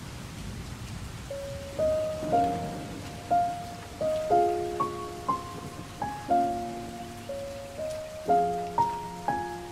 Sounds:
raining

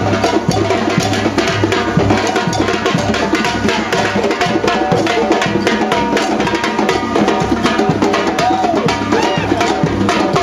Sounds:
Percussion, Music

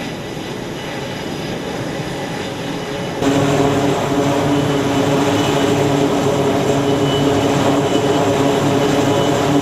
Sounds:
airplane, Aircraft, Propeller, Vehicle, outside, urban or man-made

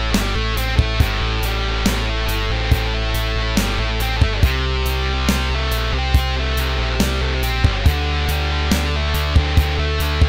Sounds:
Bass guitar, Strum, Guitar, Music, Plucked string instrument, Musical instrument

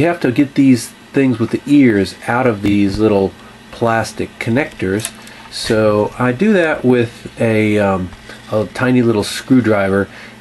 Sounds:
Speech

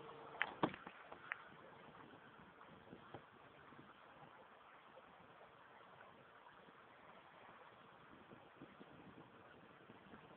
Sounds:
Vehicle, canoe

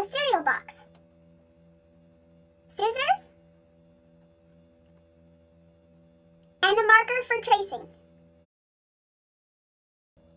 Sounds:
Speech

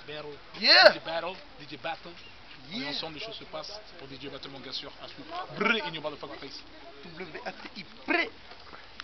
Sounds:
Speech

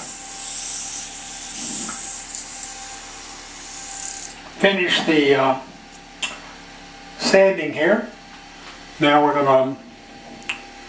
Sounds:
Speech, Wood, Tools

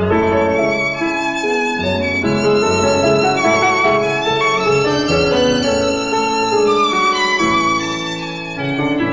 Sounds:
Violin, Musical instrument, Music

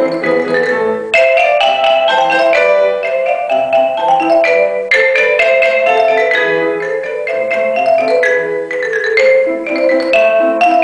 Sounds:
playing marimba

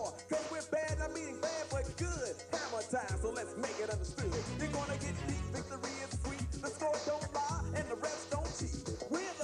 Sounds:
Music

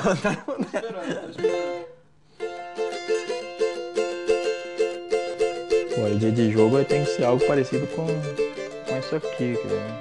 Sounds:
playing mandolin

